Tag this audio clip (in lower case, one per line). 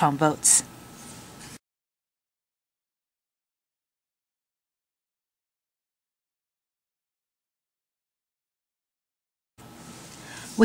speech